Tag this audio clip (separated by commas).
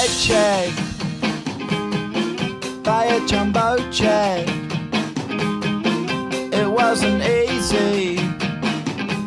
Music